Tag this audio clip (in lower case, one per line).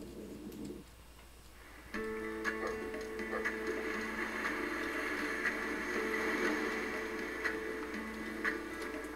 speech
bow-wow
music
dog
pets
animal